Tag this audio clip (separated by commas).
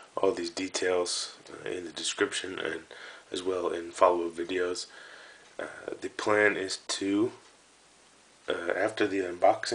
Speech